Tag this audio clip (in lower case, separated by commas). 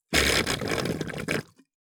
water, gurgling